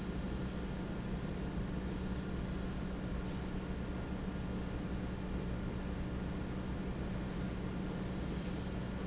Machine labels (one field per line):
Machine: fan